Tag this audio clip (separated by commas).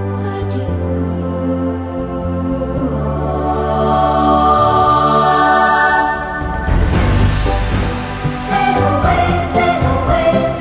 New-age music, Music